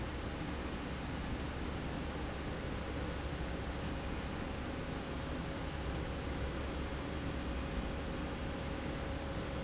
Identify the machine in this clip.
slide rail